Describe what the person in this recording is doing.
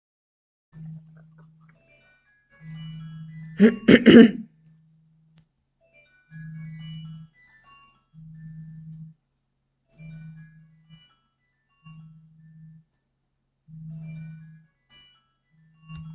I typed on my keyboard, when my mobile rang.